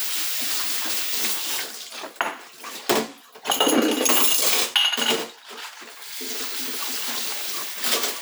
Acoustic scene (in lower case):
kitchen